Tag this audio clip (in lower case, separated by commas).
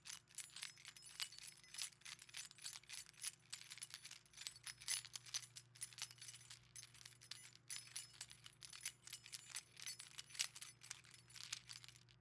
keys jangling, home sounds